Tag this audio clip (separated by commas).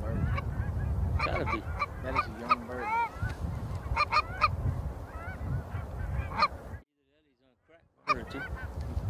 Fowl, Honk, Goose